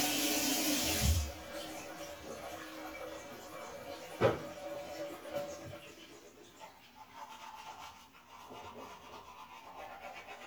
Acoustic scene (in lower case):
restroom